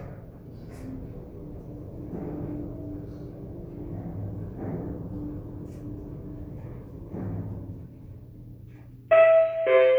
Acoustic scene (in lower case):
elevator